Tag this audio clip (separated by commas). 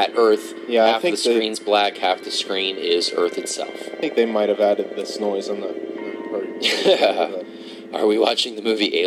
Music, Speech